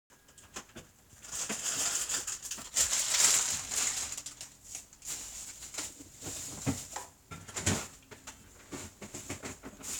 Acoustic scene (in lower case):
kitchen